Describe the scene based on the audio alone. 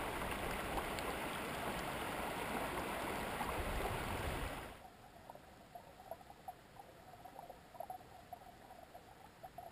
Flowing water sounds of a stream